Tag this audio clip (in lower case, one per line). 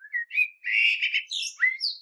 bird
animal
wild animals